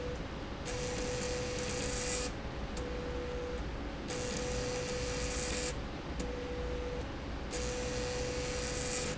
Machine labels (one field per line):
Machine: slide rail